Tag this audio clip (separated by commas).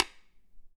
Tap